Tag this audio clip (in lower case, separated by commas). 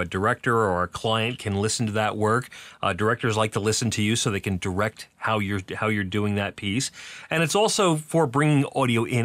speech